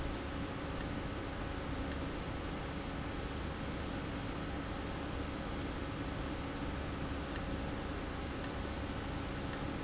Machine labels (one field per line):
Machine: valve